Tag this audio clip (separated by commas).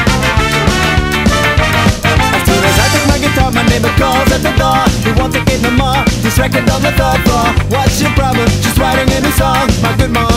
Music